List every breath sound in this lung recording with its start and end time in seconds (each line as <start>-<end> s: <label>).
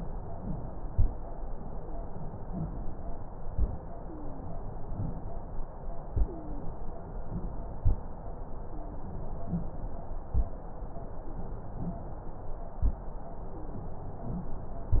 1.71-2.13 s: wheeze
4.00-4.52 s: wheeze
6.18-6.70 s: wheeze
8.67-9.19 s: wheeze
13.51-13.93 s: wheeze